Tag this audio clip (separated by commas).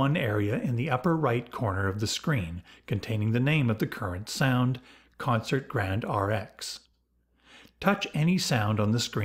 Speech